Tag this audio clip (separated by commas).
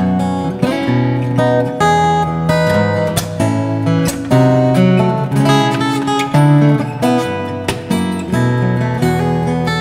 Music